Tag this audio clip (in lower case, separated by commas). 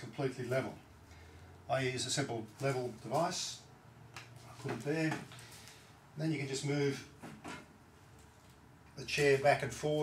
rustling leaves, speech